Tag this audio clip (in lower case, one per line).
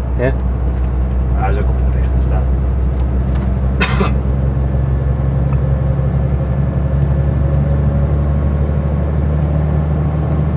vehicle